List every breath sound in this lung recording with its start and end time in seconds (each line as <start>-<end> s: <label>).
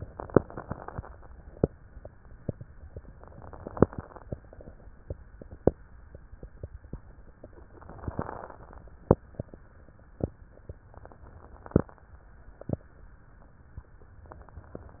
0.00-1.15 s: inhalation
3.11-4.26 s: inhalation
7.70-8.85 s: inhalation
10.87-12.03 s: inhalation
14.28-15.00 s: inhalation